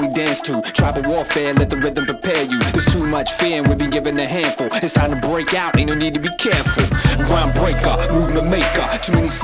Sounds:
Music

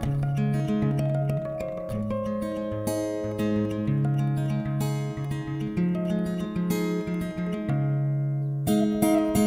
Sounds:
Music

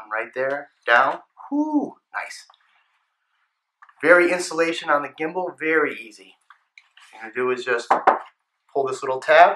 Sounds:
Speech

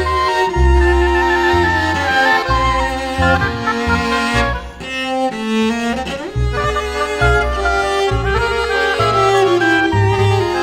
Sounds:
playing oboe

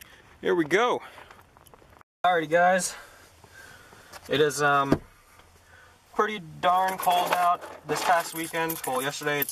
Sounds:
Speech

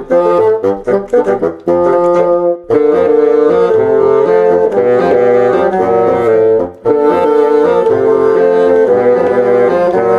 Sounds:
playing bassoon

